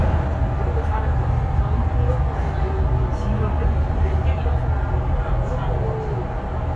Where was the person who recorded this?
on a bus